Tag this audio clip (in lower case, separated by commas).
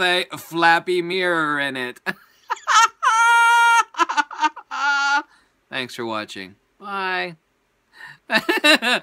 speech